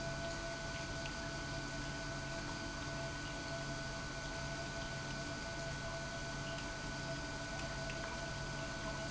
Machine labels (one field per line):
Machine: pump